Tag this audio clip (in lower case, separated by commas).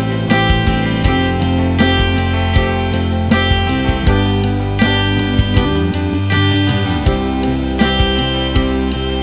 playing electric guitar